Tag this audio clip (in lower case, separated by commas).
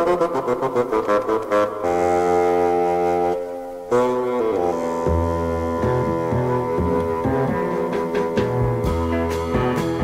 music, didgeridoo